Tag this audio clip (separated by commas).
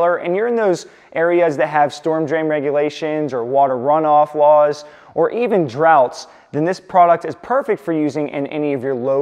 Speech